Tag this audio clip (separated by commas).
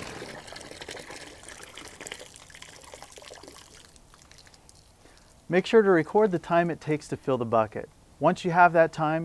Water, Speech, Liquid, Drip